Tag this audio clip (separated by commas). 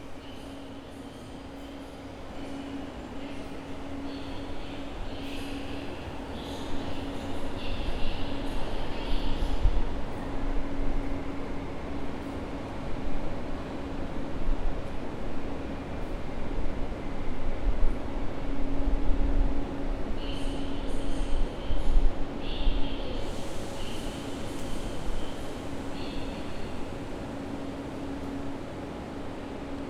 Vehicle, Train, Rail transport